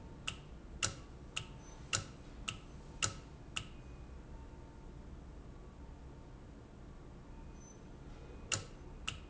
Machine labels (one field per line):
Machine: valve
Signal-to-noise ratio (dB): 6 dB